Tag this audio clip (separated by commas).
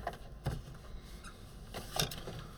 Squeak